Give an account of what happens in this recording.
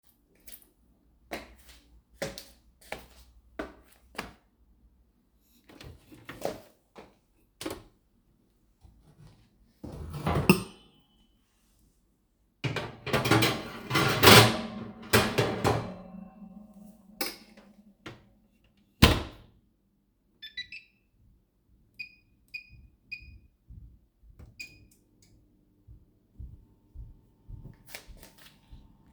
I walked to the kitchen, opened the microwave loaded the tray with food and closes the microwave and start heating by selecting the suitable mode